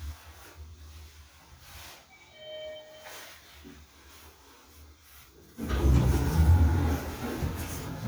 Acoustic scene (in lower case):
elevator